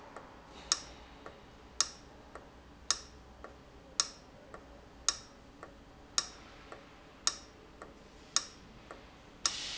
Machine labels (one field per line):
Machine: valve